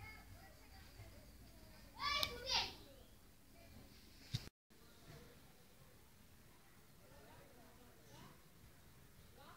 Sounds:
speech

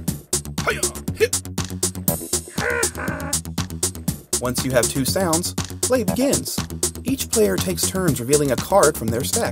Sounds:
speech
music

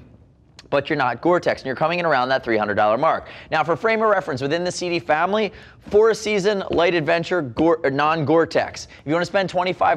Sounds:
speech

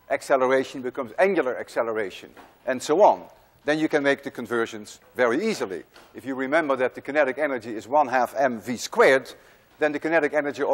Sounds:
speech

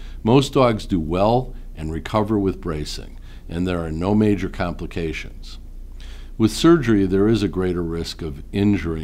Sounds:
speech

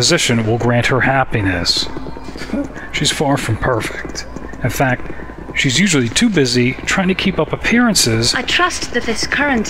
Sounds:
outside, urban or man-made
speech

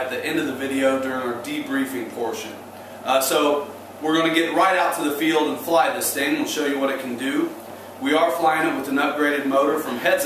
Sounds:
speech

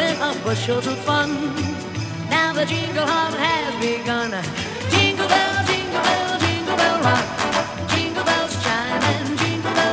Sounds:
jingle bell
music

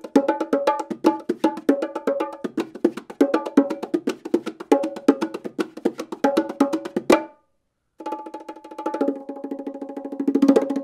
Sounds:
playing bongo

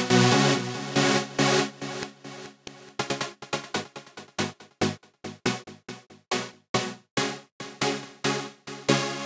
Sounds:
music

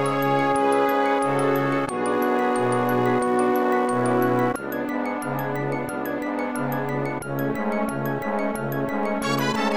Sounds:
music
video game music

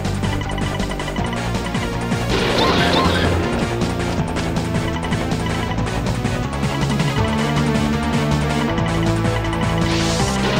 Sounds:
video game music
music

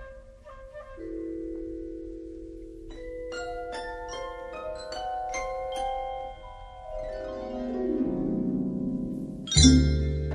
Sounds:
xylophone
glockenspiel
mallet percussion

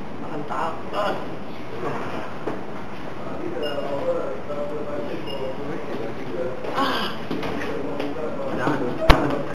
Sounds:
speech

